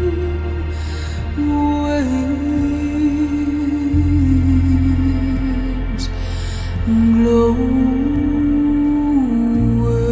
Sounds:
music

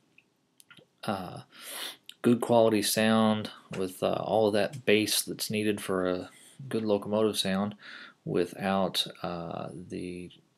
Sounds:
speech

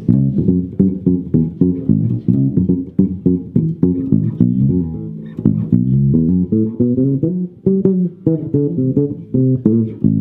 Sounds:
playing double bass

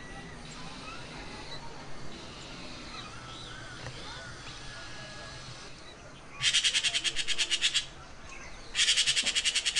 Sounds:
magpie calling

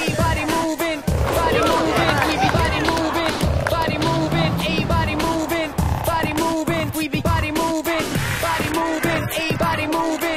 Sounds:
music

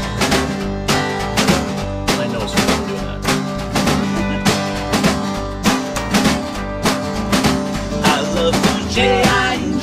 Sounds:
music

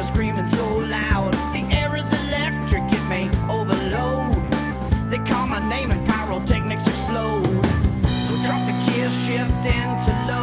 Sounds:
music

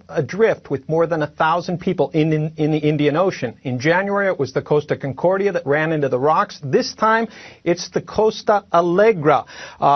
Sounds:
speech

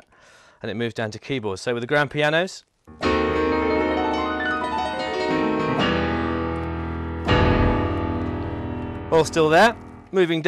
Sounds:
speech
music

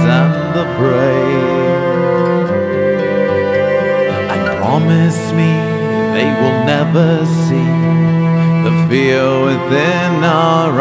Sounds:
music
sad music

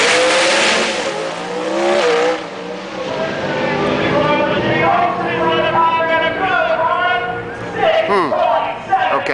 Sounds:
speech

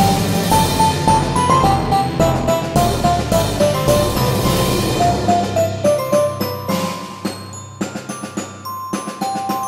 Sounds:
music

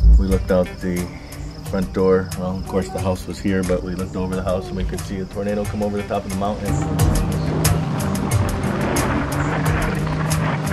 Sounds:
music
speech

